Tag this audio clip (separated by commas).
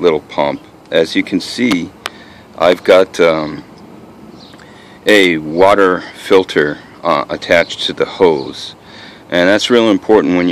Speech